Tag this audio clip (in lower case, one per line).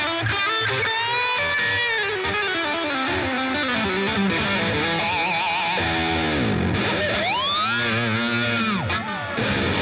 music